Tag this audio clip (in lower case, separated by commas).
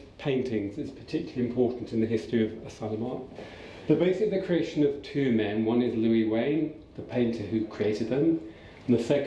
speech